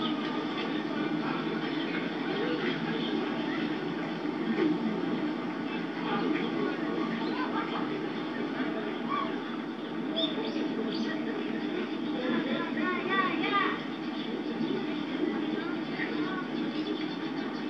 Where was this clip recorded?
in a park